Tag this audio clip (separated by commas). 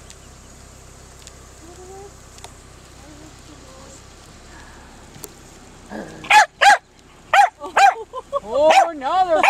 Speech